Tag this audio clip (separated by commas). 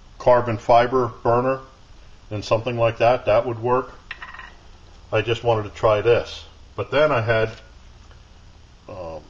Speech